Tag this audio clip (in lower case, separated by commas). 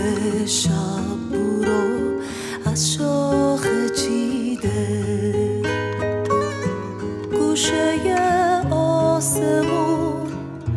flamenco, music